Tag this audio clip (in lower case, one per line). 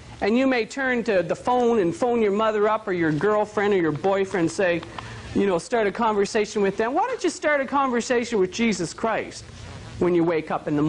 speech